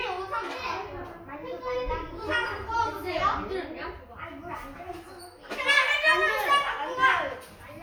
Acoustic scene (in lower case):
crowded indoor space